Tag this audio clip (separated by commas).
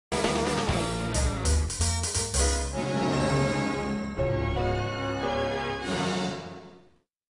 Music